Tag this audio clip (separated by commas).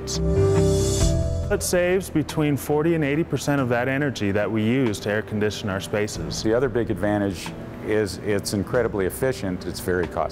Speech, Music